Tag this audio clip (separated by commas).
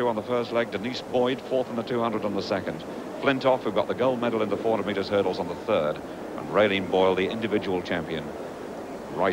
Speech, outside, urban or man-made